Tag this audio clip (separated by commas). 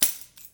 Musical instrument, Percussion, Tambourine, Music